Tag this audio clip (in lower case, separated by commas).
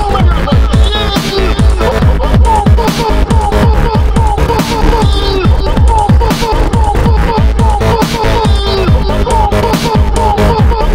dubstep, music